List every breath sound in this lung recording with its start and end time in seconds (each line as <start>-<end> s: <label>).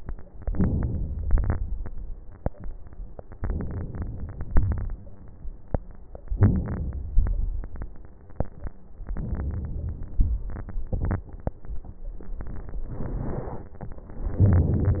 0.37-1.21 s: inhalation
1.28-1.79 s: exhalation
3.38-4.44 s: inhalation
4.47-4.97 s: exhalation
6.30-7.12 s: inhalation
7.14-7.70 s: exhalation
9.08-10.19 s: inhalation
10.22-10.91 s: exhalation
14.41-15.00 s: inhalation